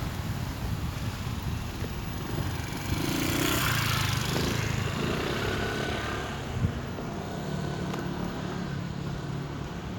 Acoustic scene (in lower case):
street